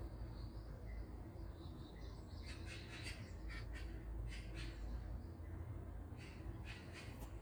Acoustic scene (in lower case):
park